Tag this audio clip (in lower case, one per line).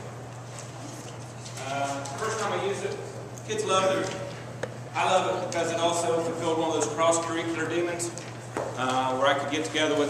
speech